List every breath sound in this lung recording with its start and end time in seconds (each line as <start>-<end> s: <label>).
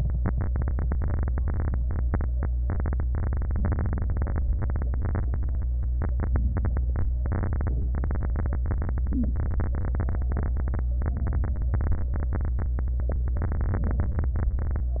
9.06-9.38 s: inhalation
9.06-9.38 s: stridor